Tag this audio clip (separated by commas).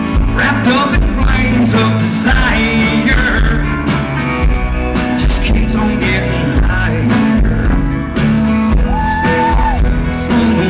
Music